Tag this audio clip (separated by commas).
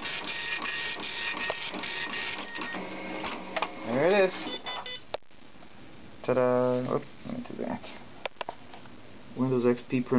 Speech, Printer